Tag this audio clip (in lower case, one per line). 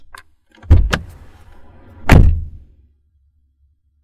motor vehicle (road)
door
vehicle
slam
car
domestic sounds